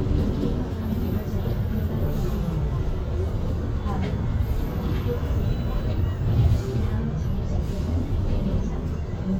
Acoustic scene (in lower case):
bus